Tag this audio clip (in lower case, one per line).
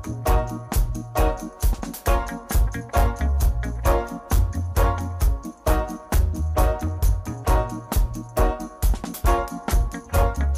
music